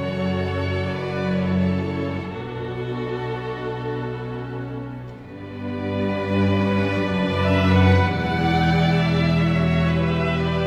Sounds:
Music

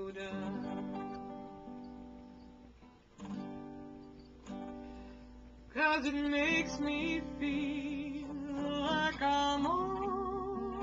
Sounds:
Music, Acoustic guitar, Guitar

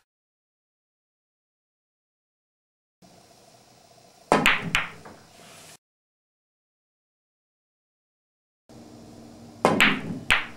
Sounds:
striking pool

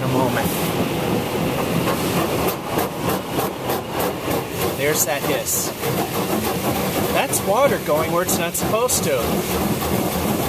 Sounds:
Speech, inside a large room or hall

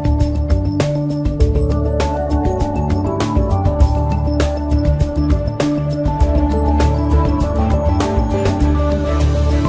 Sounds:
Music

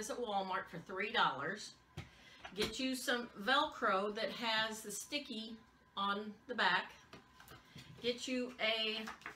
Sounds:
Speech

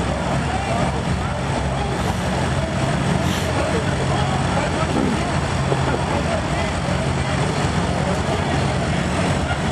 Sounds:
Vehicle, Speech, Car

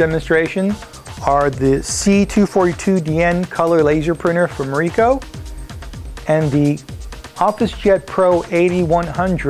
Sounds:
Speech, Music

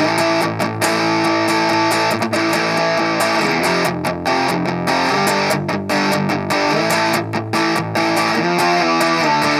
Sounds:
Music, Guitar, Plucked string instrument, Musical instrument, Strum

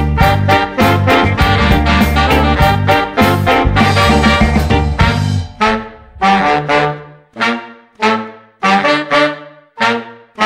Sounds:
Trumpet, Swing music, Music

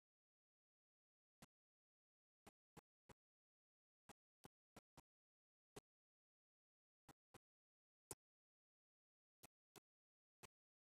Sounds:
Silence, inside a small room

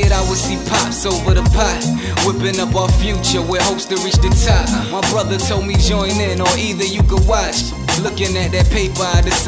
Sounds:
Music

